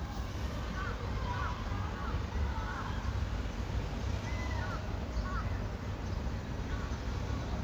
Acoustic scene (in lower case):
residential area